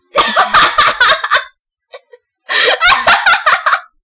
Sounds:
Human voice, Laughter

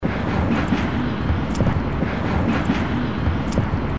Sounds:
Rail transport, Vehicle, Train

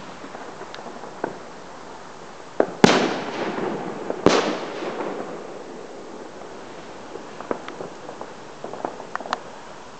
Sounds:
Explosion, Fireworks

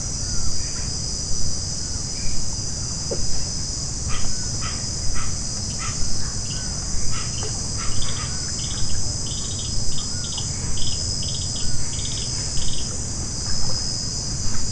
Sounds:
Bird, Animal, Insect, Wild animals

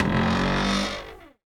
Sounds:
Cupboard open or close, home sounds

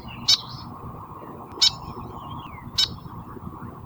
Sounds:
Wild animals, Animal, Bird

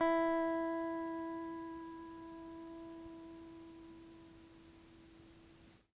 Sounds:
Guitar, Plucked string instrument, Music, Musical instrument

